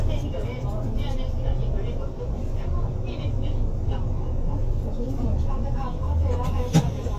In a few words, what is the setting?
bus